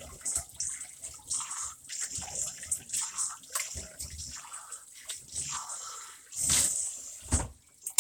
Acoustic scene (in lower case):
restroom